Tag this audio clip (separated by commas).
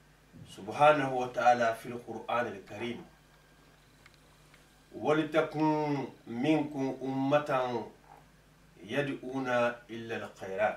Speech